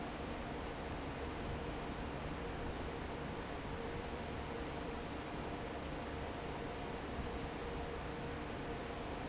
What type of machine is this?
fan